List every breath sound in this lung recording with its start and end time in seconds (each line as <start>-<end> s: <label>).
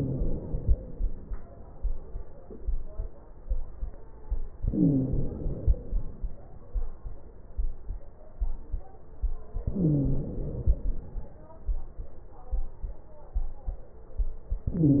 0.00-0.41 s: wheeze
0.00-1.18 s: inhalation
4.62-5.24 s: wheeze
4.62-5.93 s: inhalation
9.69-10.32 s: wheeze
9.69-10.83 s: inhalation
14.71-15.00 s: inhalation
14.71-15.00 s: wheeze